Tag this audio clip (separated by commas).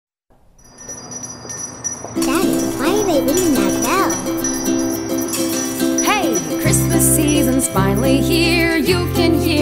Music, Speech, Christian music, Christmas music